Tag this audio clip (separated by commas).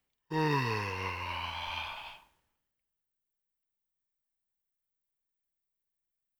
Human voice